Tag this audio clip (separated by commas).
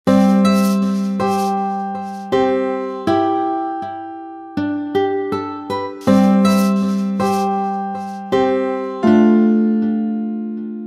Music